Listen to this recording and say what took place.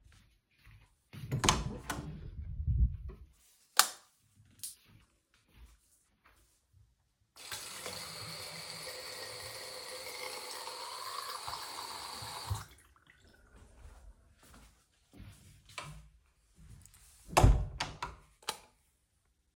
I walked down the hallway to the bathroom and opened the door. I turned on the light. Then I turned on the water, then stopped it. Then I walked back, closed the door and turned off the light.